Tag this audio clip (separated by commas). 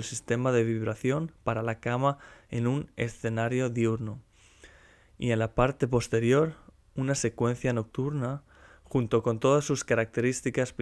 Speech